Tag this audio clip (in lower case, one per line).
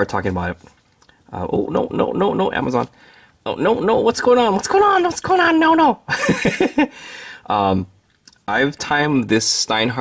speech